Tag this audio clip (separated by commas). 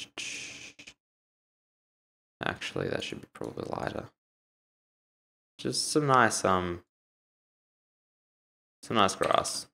inside a small room, Speech